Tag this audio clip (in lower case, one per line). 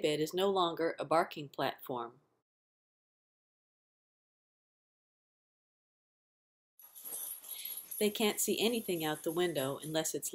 speech